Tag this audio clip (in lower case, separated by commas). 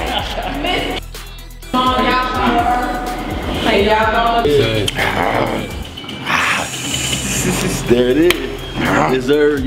speech, music